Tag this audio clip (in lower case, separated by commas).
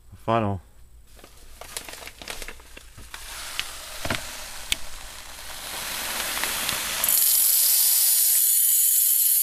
inside a small room, speech, crinkling